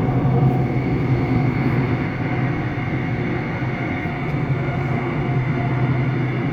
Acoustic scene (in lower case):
subway train